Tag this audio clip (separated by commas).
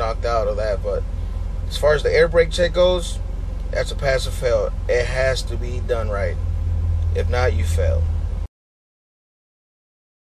Speech